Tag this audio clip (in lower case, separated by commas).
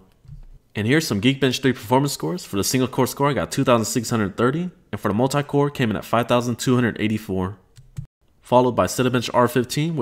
computer keyboard